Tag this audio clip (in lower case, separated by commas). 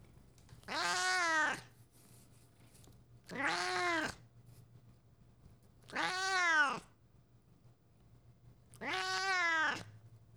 animal, pets, meow, cat